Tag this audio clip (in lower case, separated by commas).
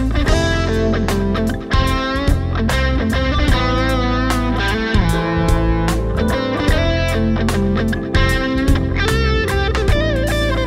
music, musical instrument, guitar, strum, electric guitar, plucked string instrument